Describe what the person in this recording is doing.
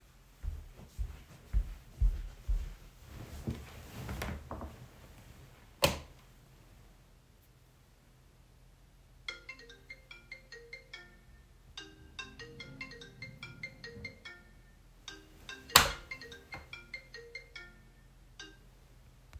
I went to bed, switched the light off. Suddenly my phone rang, therefore I switched the light on again and answered the call